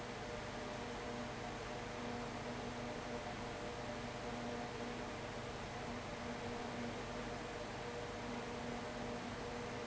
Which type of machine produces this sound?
fan